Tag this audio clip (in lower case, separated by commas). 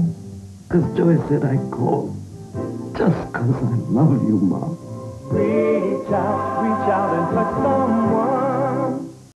music, speech